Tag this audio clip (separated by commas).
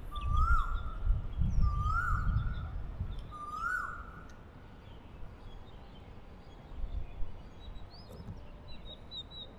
Wild animals, Animal, Bird